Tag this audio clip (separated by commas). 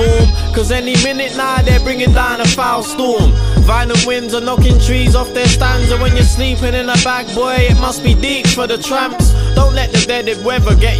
Music